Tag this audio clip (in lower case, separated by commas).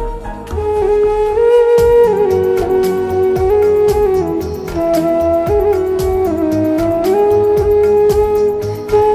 playing flute